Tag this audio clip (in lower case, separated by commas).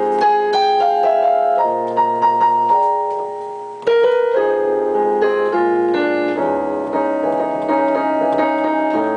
music